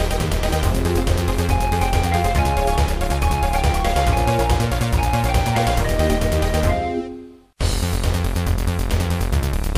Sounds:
music

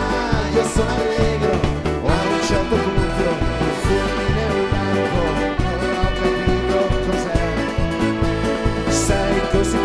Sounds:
music, orchestra

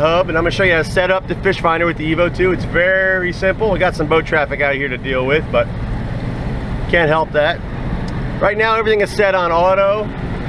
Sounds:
speech

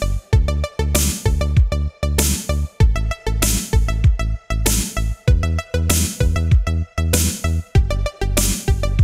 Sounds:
music

